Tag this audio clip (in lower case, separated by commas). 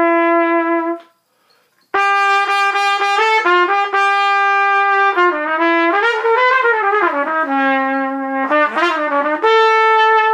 trumpet, brass instrument, playing trumpet